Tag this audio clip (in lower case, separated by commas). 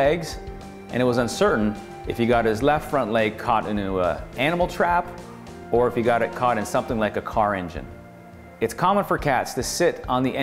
music, speech